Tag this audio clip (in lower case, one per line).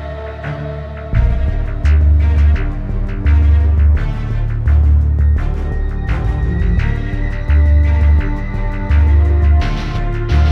music
background music